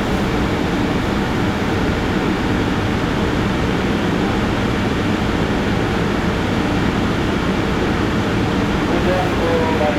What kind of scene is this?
subway station